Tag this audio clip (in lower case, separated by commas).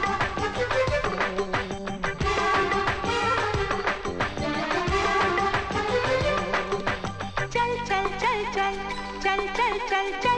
music of bollywood, singing, music